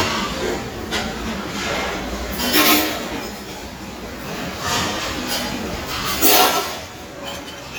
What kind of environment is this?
restaurant